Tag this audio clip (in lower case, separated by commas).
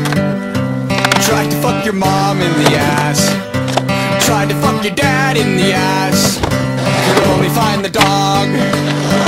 skateboard, music